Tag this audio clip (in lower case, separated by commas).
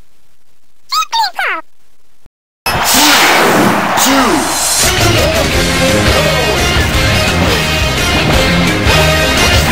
thwack